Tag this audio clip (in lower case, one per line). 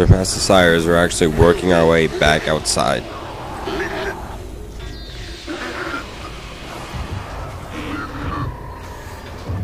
speech